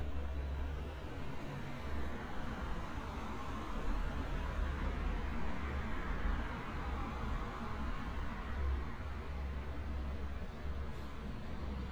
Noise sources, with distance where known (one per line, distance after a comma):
engine of unclear size